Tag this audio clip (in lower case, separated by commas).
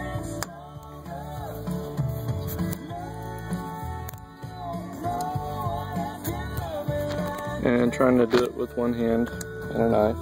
speech, music